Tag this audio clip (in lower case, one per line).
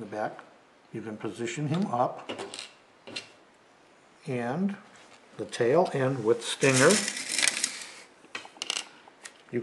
inside a small room
speech